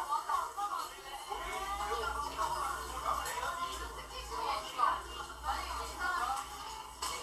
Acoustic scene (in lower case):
crowded indoor space